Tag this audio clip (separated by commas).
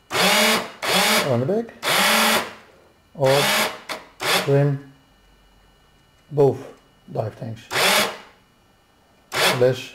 Speech, inside a small room